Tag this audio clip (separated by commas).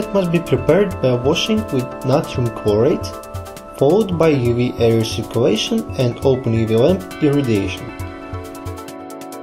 Narration